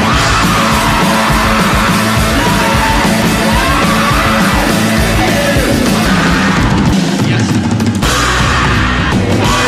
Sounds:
people screaming

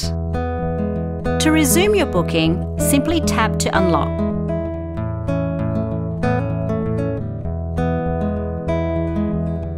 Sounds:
Speech, Music

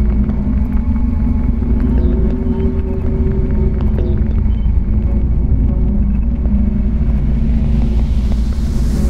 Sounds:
Music, Video game music

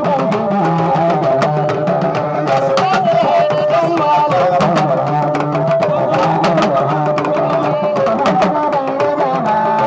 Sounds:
Music, Traditional music

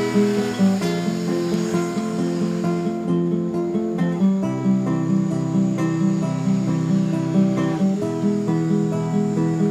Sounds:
Music

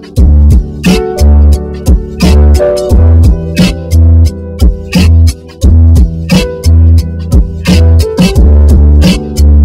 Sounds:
Music

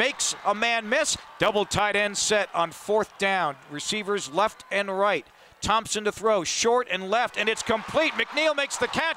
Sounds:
Speech

